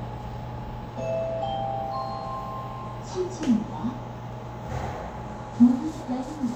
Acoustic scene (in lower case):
elevator